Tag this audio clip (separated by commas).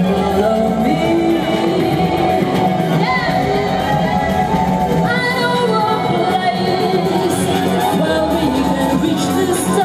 Music of Latin America, Electronic dance music, Percussion, Electronic music, Music